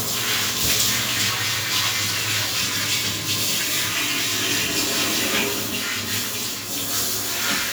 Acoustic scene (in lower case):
restroom